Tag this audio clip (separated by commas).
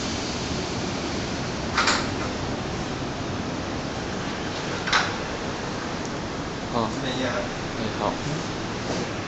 Speech